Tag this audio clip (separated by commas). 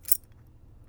home sounds, Keys jangling